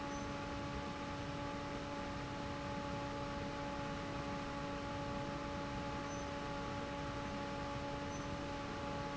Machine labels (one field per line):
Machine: fan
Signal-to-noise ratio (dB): 0 dB